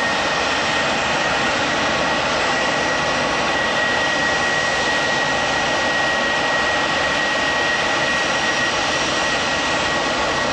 Aircraft engine idling